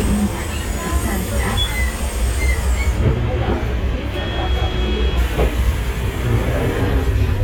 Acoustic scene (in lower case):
bus